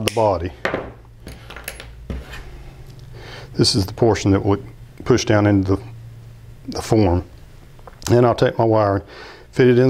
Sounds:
speech

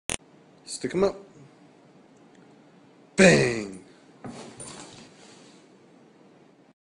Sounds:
speech

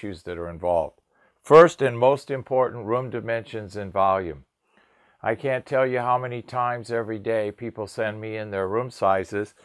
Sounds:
speech

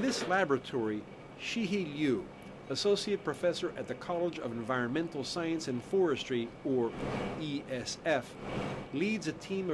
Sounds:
speech

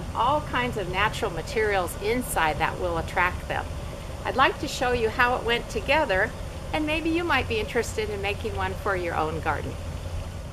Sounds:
speech

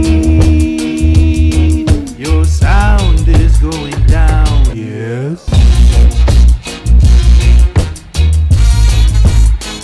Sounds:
music

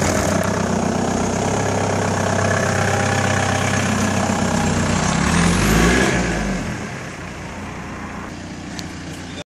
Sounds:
speech

